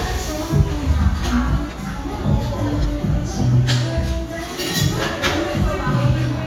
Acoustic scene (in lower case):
cafe